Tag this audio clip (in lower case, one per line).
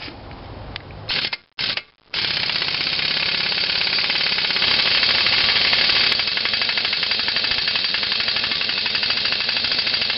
outside, rural or natural